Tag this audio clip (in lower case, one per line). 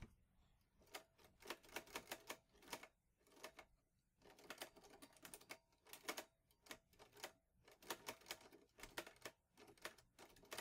computer keyboard